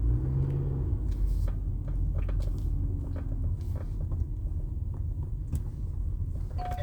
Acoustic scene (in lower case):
car